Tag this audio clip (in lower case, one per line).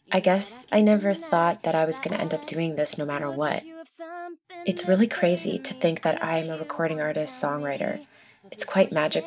speech